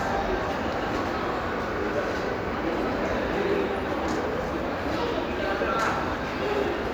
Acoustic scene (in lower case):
crowded indoor space